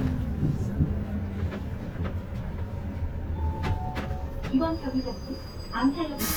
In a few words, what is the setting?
bus